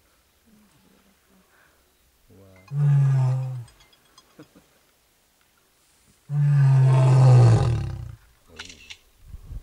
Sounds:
lions roaring

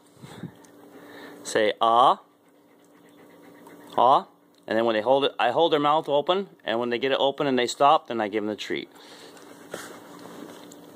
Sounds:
Speech

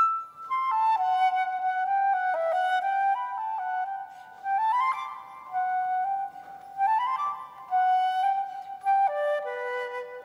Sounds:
Music, Flute, playing flute

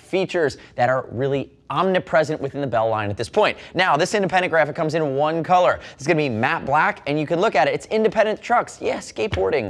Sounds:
Speech

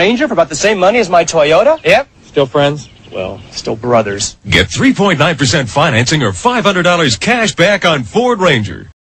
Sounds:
Speech

